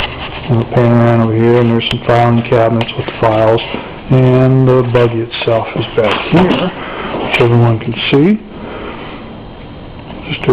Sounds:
speech

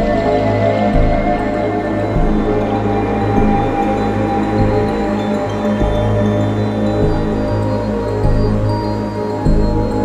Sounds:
trance music
music
electronic music

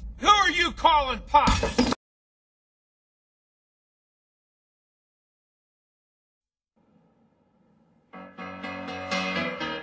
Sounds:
speech
guitar
musical instrument
plucked string instrument
music

